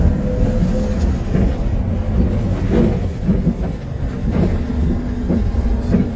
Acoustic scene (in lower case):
bus